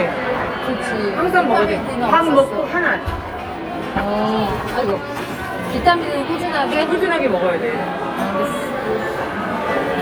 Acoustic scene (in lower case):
crowded indoor space